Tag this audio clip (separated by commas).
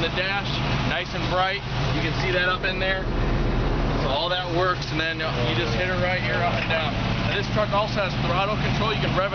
Vehicle, Truck, Speech